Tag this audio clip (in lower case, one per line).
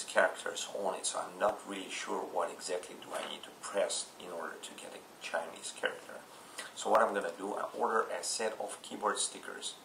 speech
inside a small room